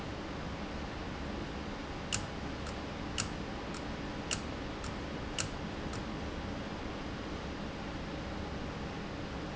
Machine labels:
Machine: valve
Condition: abnormal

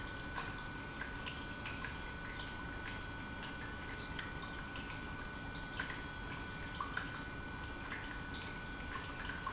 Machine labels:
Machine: pump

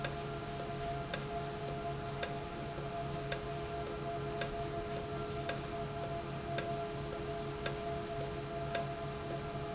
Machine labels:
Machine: valve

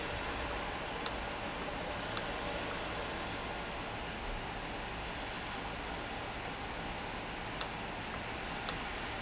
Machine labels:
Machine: valve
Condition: normal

